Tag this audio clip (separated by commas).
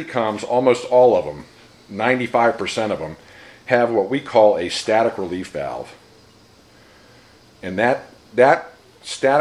Speech